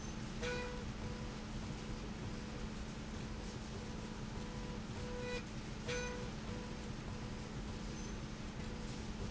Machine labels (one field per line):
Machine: slide rail